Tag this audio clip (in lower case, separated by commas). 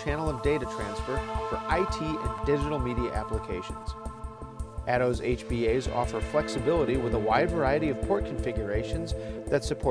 speech, music